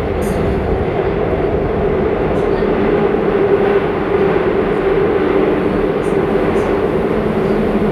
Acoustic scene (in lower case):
subway train